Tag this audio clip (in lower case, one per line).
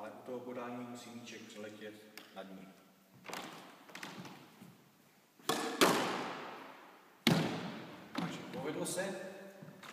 playing squash